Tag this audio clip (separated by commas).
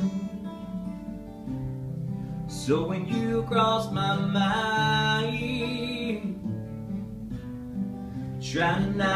Music, Male singing